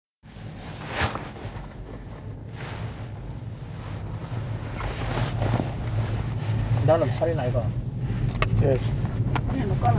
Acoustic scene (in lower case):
car